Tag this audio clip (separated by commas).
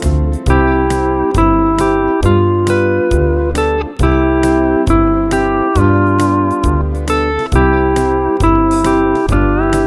Music